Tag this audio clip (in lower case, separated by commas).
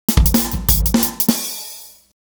drum kit, music, percussion, musical instrument